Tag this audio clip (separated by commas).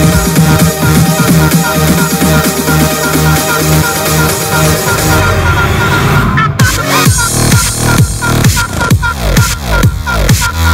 Background music, Music